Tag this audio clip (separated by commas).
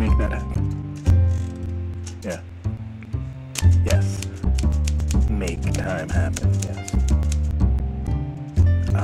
Soundtrack music, Speech, Music